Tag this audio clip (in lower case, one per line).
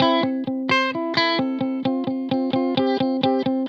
electric guitar
guitar
plucked string instrument
music
musical instrument